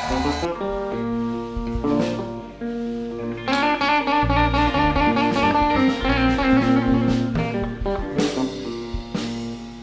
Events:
[0.00, 9.82] music

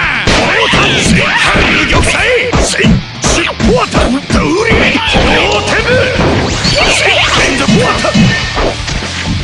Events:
[0.00, 2.52] male speech
[0.00, 9.43] music
[0.00, 9.43] video game sound
[0.24, 0.48] whack
[0.69, 1.15] whack
[1.34, 1.55] whack
[1.73, 2.25] whack
[2.49, 2.86] whack
[2.69, 2.88] male speech
[3.21, 3.41] whack
[3.22, 6.20] male speech
[3.53, 3.74] whack
[3.89, 4.14] whack
[4.25, 4.75] whack
[5.07, 5.26] whack
[6.30, 6.53] whack
[7.22, 8.35] male speech
[8.47, 9.22] whack

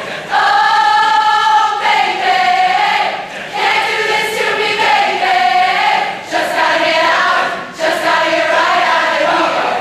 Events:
[0.00, 9.80] choir
[0.00, 9.80] mechanisms

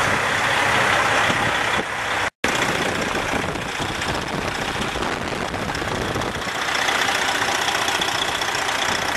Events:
[0.00, 2.26] truck
[2.39, 9.15] engine
[2.42, 9.15] wind

